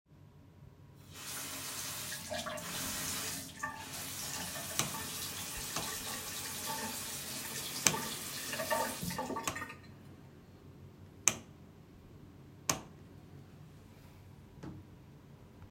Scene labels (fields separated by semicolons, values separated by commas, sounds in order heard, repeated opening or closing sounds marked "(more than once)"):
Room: bathroom; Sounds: running water, light switch